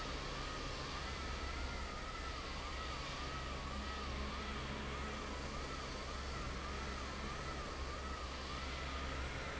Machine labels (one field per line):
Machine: fan